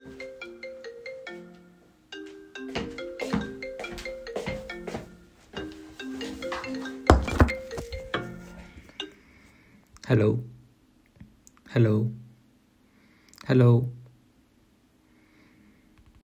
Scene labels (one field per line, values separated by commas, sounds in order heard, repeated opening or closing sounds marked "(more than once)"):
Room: office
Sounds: phone ringing, footsteps